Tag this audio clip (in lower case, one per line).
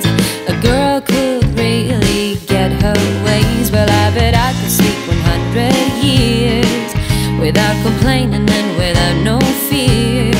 music